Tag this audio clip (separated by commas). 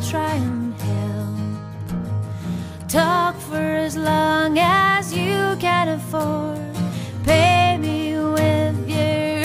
Music